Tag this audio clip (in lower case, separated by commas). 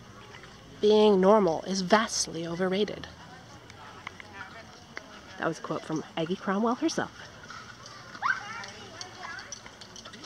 outside, urban or man-made, speech